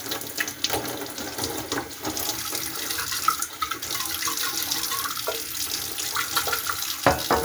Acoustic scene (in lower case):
kitchen